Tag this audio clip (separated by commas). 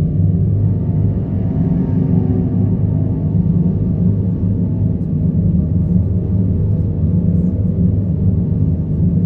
door slamming